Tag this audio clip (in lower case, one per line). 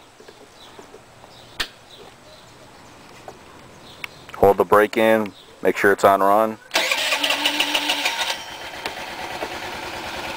speech
motorcycle
vehicle